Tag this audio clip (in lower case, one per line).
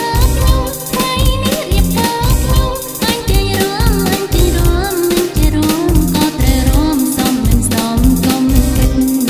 dance music
music